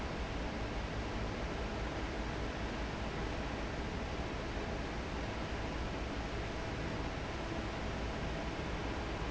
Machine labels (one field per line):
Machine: fan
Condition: normal